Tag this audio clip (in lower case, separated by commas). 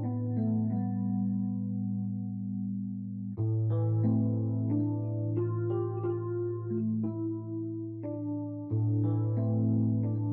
music